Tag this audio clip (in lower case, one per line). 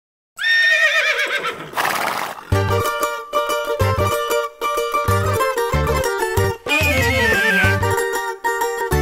mandolin
whinny
music